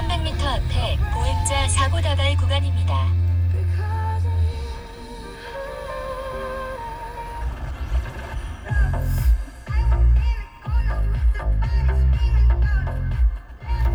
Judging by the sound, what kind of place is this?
car